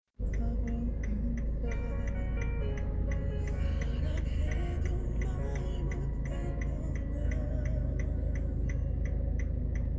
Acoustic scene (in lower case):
car